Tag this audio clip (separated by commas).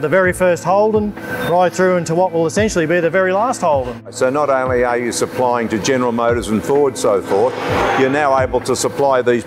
Music, Speech